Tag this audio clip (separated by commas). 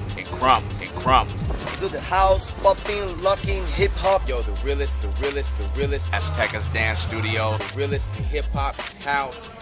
Speech, Music